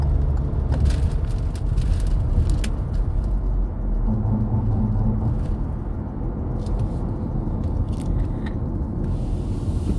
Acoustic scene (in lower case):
car